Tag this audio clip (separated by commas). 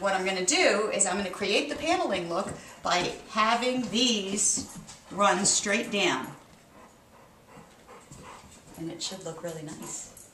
Speech